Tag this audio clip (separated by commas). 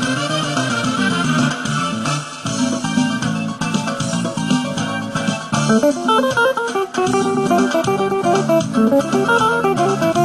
Guitar, inside a small room, Plucked string instrument, Musical instrument, Music